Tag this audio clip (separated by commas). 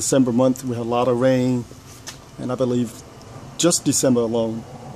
Speech